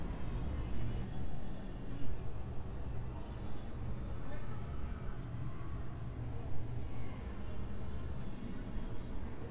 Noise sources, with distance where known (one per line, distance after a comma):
person or small group talking, far